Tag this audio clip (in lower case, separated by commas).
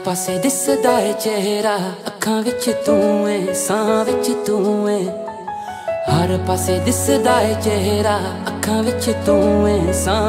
music